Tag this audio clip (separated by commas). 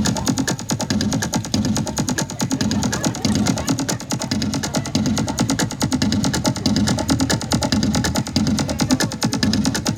Music, Electronic music, Speech